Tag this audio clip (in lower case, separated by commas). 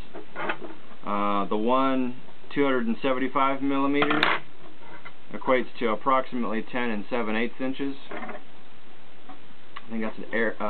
speech